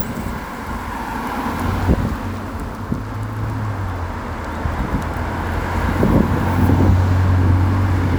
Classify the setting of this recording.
street